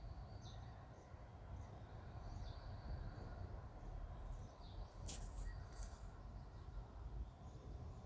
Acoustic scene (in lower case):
park